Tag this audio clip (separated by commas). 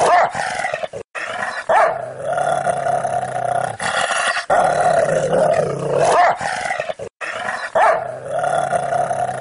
dog growling